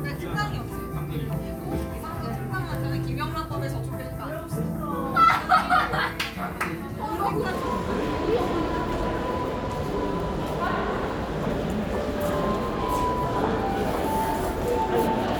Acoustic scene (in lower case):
crowded indoor space